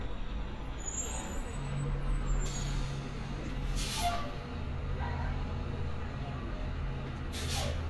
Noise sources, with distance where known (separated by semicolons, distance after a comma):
large-sounding engine, near